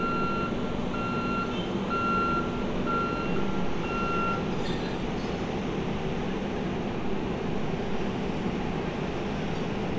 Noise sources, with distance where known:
reverse beeper

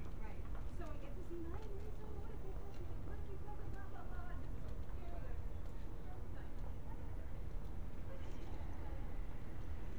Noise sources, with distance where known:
person or small group talking, far

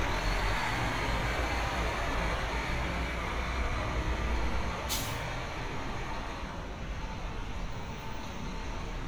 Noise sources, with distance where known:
large-sounding engine, near

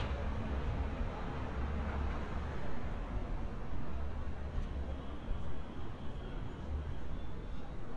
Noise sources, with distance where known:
engine of unclear size, far

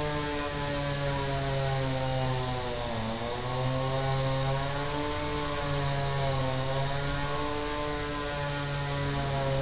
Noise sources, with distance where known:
unidentified impact machinery, near

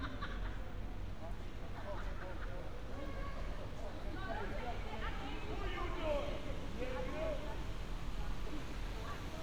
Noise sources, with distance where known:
person or small group talking, near

